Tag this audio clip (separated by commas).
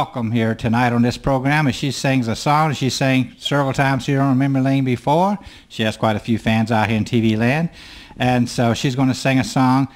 Speech